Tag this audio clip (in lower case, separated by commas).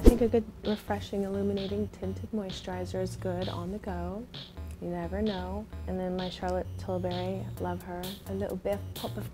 speech, inside a small room, music